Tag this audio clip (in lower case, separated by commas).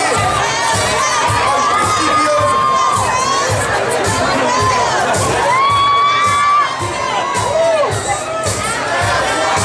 inside a large room or hall, speech, music